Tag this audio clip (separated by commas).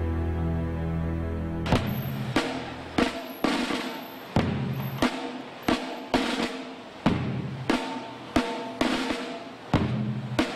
Drum, Snare drum, Drum roll, Percussion